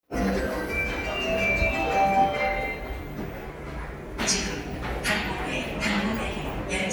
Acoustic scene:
subway station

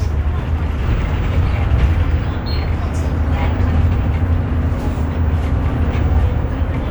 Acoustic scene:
bus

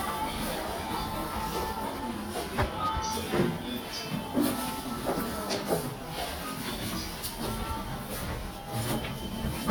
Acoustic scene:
elevator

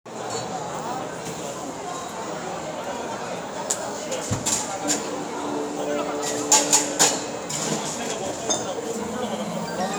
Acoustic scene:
cafe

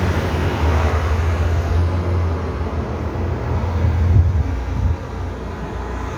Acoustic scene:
street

